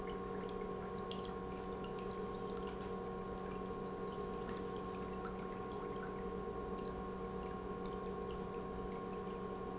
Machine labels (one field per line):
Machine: pump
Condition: normal